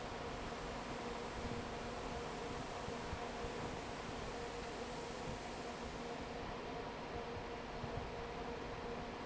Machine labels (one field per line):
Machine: fan